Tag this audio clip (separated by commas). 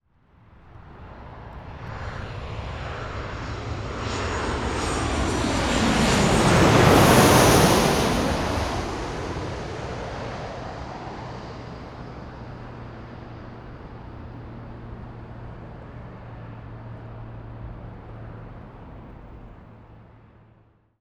Aircraft, Vehicle, Fixed-wing aircraft